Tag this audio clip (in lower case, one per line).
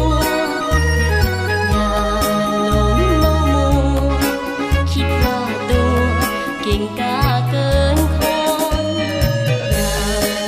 outside, urban or man-made
music